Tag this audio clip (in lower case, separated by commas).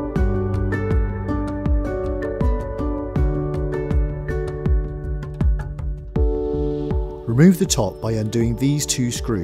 speech, music